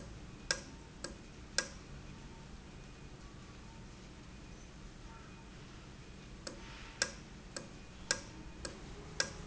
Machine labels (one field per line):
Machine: valve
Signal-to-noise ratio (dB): 6 dB